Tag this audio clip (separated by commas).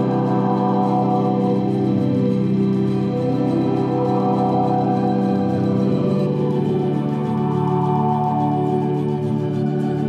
Music